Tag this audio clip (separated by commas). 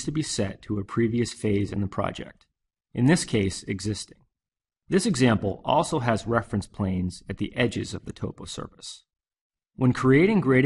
Speech